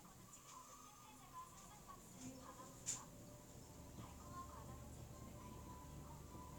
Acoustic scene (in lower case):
elevator